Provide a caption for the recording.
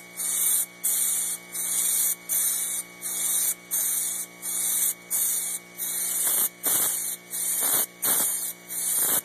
Something is being sprayed over and over consistently